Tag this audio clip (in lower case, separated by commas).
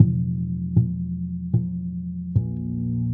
plucked string instrument, music, guitar, musical instrument, bass guitar